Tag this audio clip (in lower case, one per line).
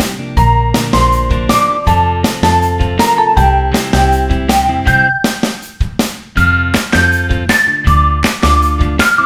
music